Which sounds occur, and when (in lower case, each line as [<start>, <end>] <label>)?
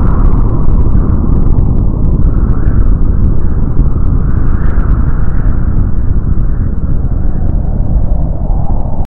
[0.00, 9.00] static
[0.00, 9.01] eruption